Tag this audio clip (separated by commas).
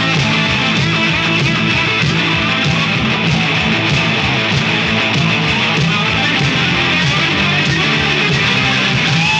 Punk rock, Heavy metal